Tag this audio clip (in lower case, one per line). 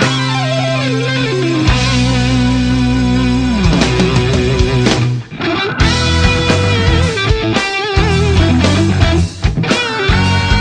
music